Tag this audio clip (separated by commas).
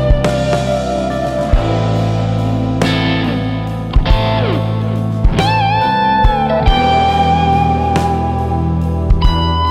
Psychedelic rock, Plucked string instrument, Music, playing electric guitar, Electric guitar, Progressive rock, Musical instrument, Guitar, Rock music